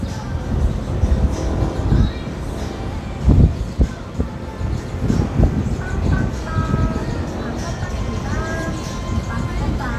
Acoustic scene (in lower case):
street